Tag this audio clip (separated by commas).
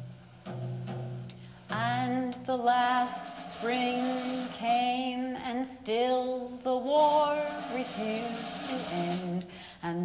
Music, Percussion